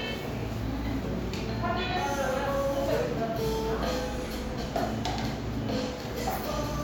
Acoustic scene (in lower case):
cafe